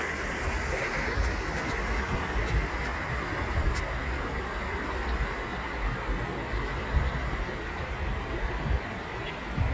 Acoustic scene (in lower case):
park